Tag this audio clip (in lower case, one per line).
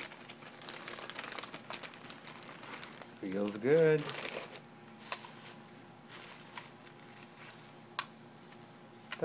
speech